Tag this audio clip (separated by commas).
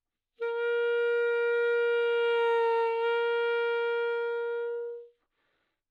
Musical instrument, woodwind instrument, Music